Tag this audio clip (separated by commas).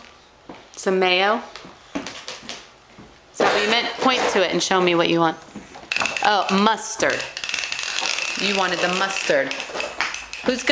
Speech